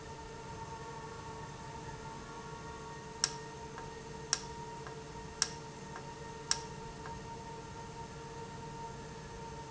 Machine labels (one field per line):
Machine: valve